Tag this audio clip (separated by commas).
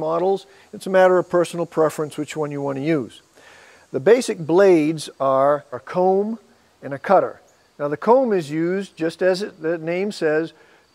Speech